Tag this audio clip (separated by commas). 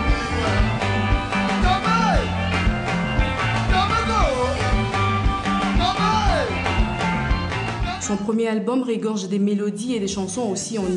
Rock and roll, Music